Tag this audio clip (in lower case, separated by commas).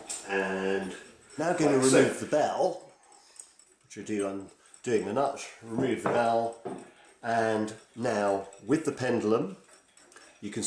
tick-tock, speech